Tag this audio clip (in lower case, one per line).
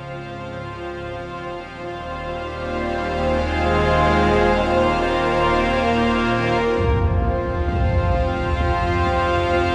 music